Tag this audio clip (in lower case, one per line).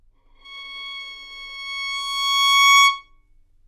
bowed string instrument
music
musical instrument